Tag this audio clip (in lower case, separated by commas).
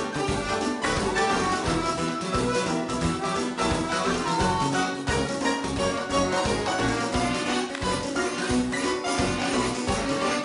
music